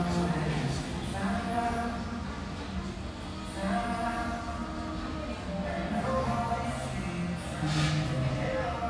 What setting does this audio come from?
restaurant